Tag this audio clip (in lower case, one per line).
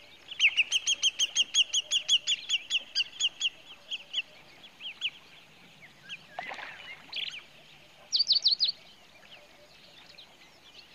chirp
tweeting
bird
bird song